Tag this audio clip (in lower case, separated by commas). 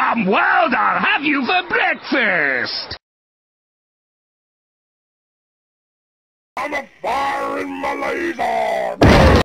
whoop, speech